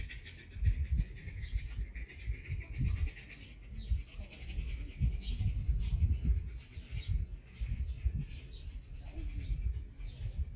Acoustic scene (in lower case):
park